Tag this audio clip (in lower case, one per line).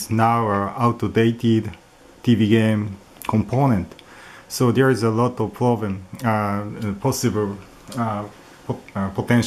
speech